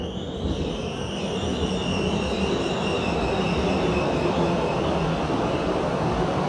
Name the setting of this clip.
subway station